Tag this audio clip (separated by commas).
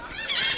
Bird, Animal, Gull, Wild animals